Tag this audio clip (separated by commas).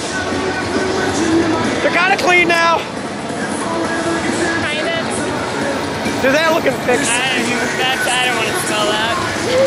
Speech, Music